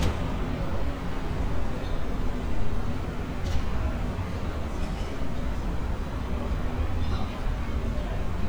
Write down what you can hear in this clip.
person or small group talking